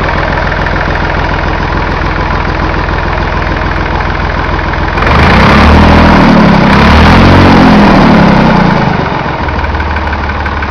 An engine is idling and revving up